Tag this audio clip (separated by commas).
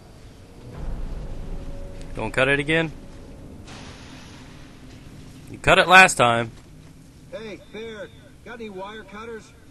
Speech